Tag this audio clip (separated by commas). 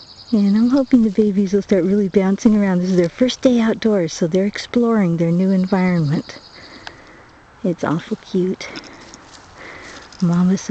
Speech